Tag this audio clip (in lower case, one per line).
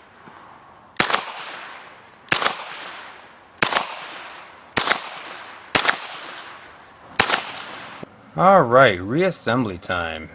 outside, rural or natural
speech